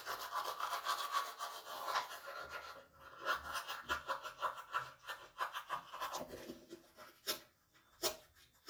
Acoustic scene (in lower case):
restroom